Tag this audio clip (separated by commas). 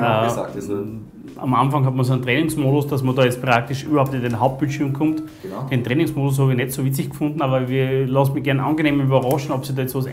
Speech